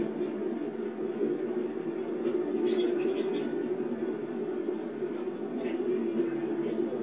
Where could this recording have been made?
in a park